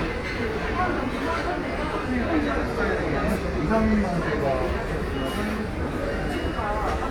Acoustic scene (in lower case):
crowded indoor space